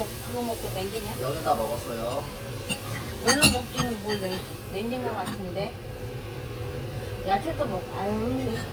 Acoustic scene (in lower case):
restaurant